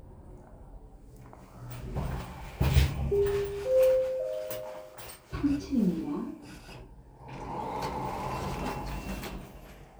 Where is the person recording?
in an elevator